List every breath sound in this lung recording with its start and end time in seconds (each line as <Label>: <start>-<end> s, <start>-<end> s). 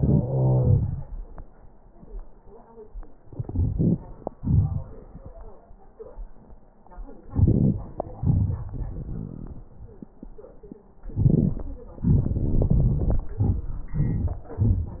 Inhalation: 7.29-7.85 s
Exhalation: 8.18-8.71 s
Wheeze: 0.00-1.09 s